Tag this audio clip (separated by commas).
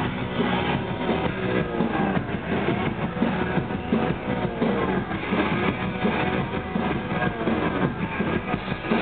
Music